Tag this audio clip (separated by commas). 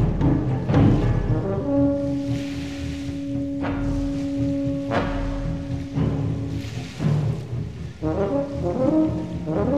Timpani, Trombone